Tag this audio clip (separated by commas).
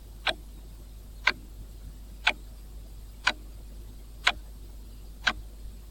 Mechanisms, Clock